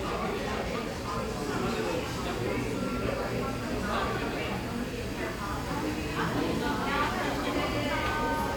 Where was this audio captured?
in a crowded indoor space